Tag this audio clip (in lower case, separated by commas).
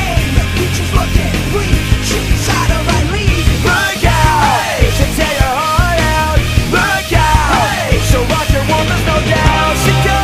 music